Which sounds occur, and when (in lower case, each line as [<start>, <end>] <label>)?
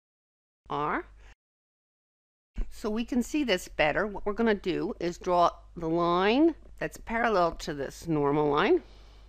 [0.62, 0.98] woman speaking
[0.62, 1.30] mechanisms
[1.11, 1.29] writing
[2.51, 2.67] generic impact sounds
[2.51, 9.25] mechanisms
[2.68, 5.51] woman speaking
[5.74, 6.52] woman speaking
[6.75, 8.81] woman speaking